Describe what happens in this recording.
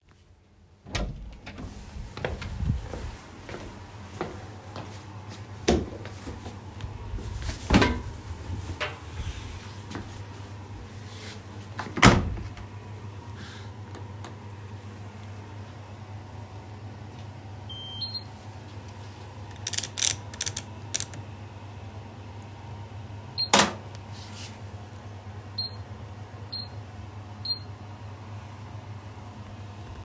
I went into the laundry room, closed the door, put the clothes in the washing machine, turned it on, selected the mode, closed the machine, and started the wash.